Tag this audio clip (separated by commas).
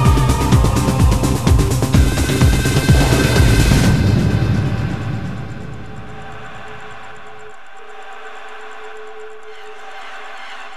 Music